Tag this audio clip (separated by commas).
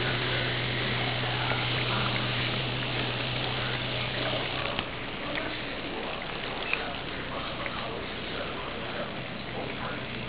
Speech